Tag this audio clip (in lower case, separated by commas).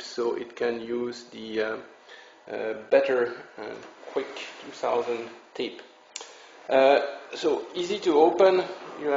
speech